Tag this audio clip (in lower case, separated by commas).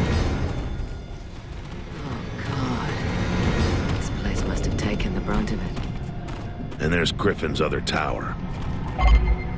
speech